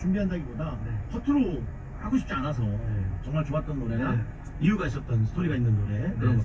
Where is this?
in a car